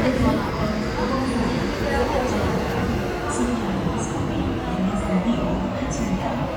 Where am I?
in a subway station